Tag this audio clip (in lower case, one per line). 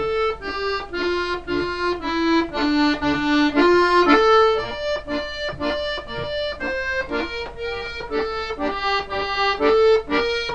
playing accordion
accordion
music